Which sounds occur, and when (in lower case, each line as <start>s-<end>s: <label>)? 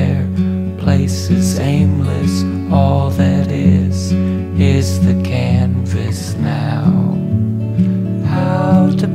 0.0s-4.8s: male singing
0.0s-9.1s: music
5.1s-5.7s: male singing
6.0s-6.5s: male singing
6.9s-9.1s: male singing